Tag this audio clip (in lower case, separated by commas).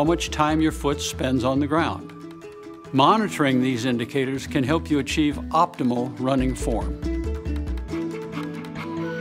music, speech